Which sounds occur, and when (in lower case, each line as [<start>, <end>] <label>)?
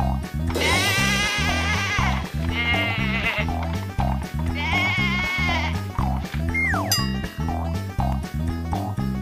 [0.00, 0.20] sound effect
[0.00, 9.21] music
[0.49, 2.15] bleat
[1.36, 1.59] sound effect
[1.94, 2.17] sound effect
[2.45, 3.43] bleat
[2.64, 2.92] sound effect
[3.41, 3.80] sound effect
[3.94, 4.28] sound effect
[4.45, 5.71] bleat
[4.62, 4.94] sound effect
[5.44, 5.81] sound effect
[5.98, 6.19] sound effect
[6.42, 6.83] sound effect
[6.87, 7.31] bell
[7.41, 7.64] sound effect
[7.96, 8.20] sound effect
[8.65, 8.97] sound effect